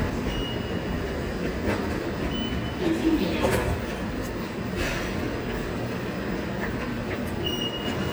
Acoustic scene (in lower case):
subway station